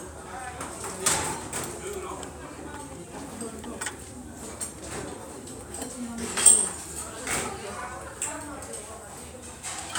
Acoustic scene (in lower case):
restaurant